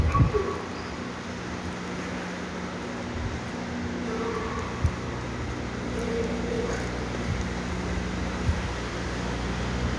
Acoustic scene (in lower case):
subway station